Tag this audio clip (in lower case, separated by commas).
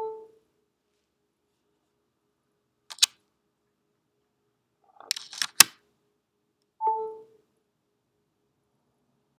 ding